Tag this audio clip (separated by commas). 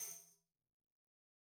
Tambourine, Music, Musical instrument, Percussion